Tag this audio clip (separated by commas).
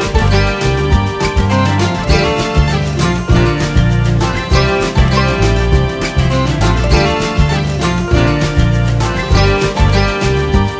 Punk rock